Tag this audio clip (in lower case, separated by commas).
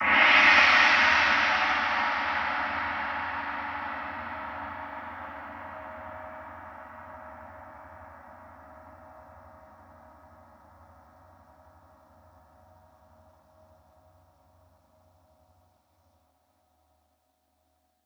musical instrument, gong, percussion, music